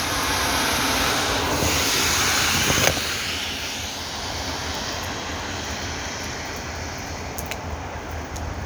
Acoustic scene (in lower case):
street